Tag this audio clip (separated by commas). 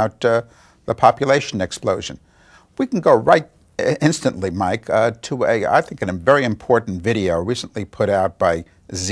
Speech